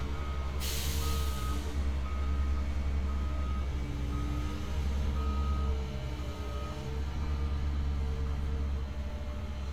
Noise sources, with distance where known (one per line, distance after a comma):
reverse beeper